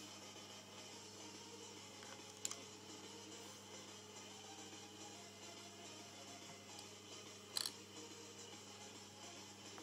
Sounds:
Music

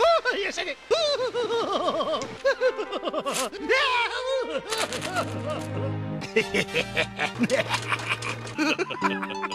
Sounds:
Music, Speech

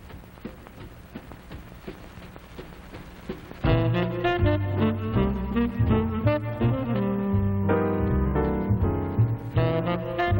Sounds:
Music

